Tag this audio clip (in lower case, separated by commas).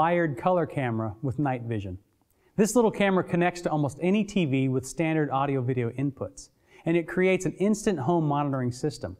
speech